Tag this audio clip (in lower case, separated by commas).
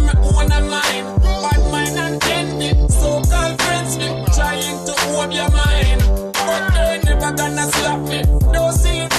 music, male singing